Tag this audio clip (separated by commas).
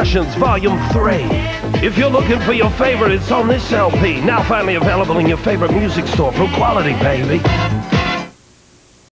Music, Speech, Radio